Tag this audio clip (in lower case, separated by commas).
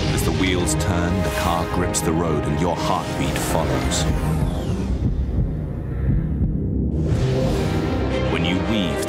speech, sound effect, music